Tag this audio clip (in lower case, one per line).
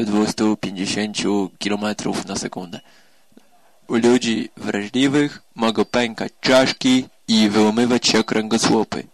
speech